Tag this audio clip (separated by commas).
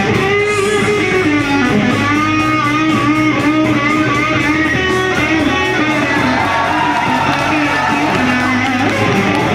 Musical instrument, Acoustic guitar, Music, Electric guitar